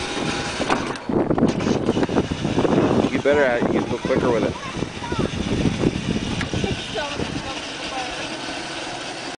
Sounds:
Truck, Vehicle, Speech

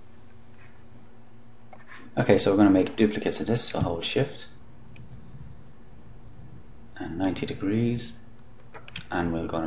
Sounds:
Clicking

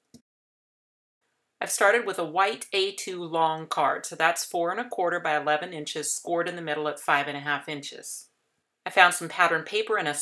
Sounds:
Speech

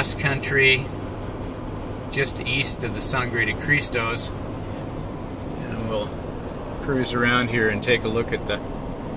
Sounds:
Speech

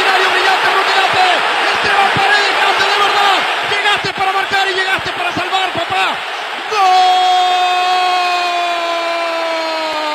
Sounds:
Speech

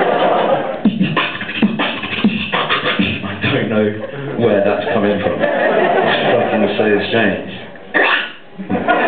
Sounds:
Speech, Beatboxing

